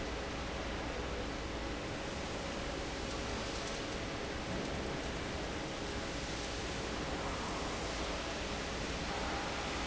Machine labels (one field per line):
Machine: fan